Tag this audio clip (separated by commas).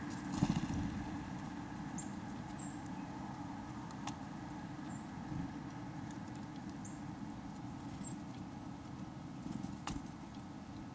Bird